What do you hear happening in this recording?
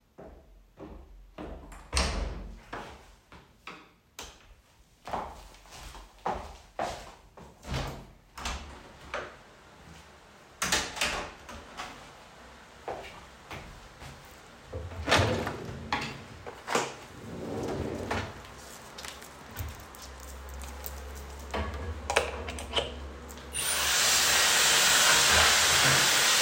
I opened the door of the bathroom, switched on the light and opened the window. Then I opened the drawer and took out the hair dryer. Finally, I started to dry my hair.